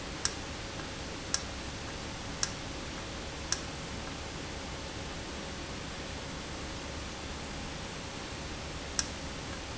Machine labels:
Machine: valve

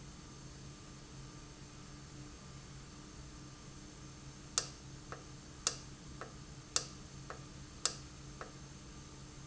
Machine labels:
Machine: valve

